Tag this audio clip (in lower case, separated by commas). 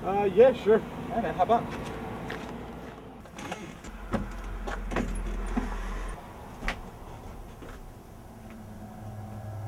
speech, music, outside, urban or man-made